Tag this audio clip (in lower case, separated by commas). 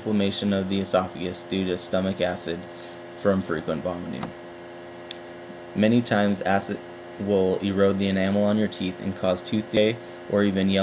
speech